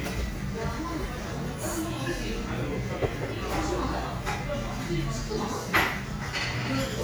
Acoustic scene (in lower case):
cafe